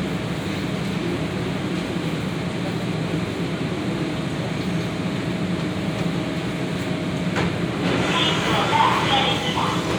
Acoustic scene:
subway train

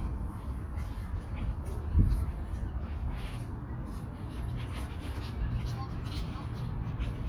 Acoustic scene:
park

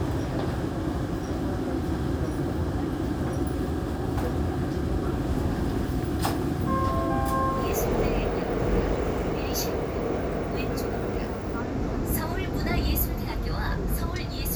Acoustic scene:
subway train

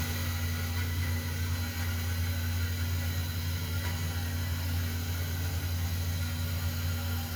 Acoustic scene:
restroom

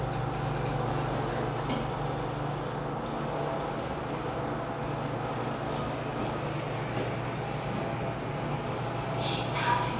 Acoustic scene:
elevator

